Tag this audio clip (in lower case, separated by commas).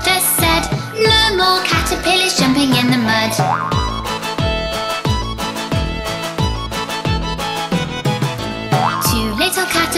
music, music for children, singing